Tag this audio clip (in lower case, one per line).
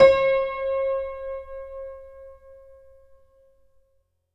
music
keyboard (musical)
musical instrument
piano